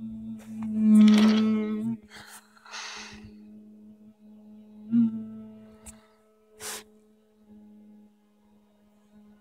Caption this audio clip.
A humming sound gets closer and then farther away